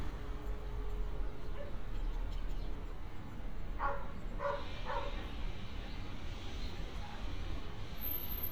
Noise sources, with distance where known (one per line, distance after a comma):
dog barking or whining